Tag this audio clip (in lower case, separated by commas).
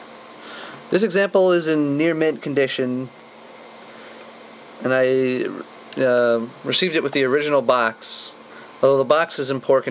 speech